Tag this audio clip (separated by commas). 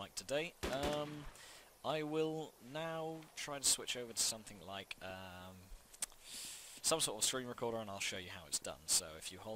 Speech